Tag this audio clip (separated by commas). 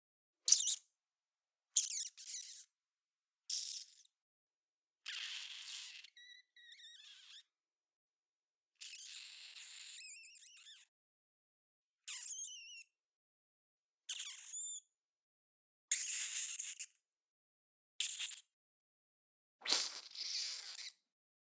Animal, Wild animals